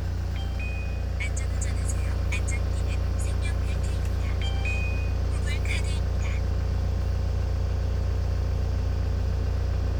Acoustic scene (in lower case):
car